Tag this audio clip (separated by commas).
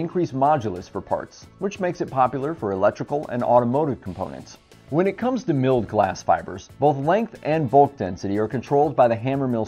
Speech